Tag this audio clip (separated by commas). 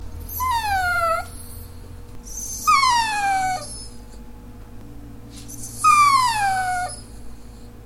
Domestic animals, Dog, Animal